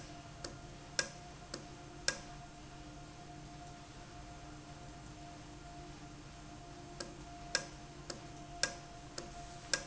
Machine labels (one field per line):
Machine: valve